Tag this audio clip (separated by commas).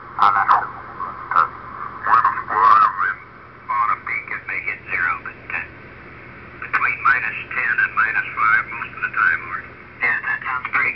Speech, Radio